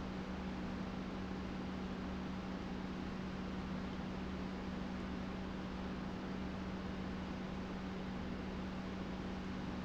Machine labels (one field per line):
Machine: pump